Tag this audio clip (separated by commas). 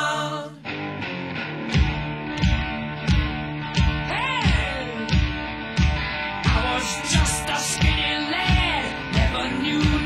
Music, Musical instrument, Bass guitar, Plucked string instrument